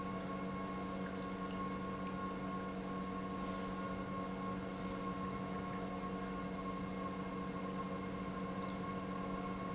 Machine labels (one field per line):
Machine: pump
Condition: normal